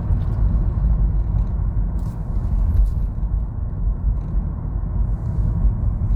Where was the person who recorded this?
in a car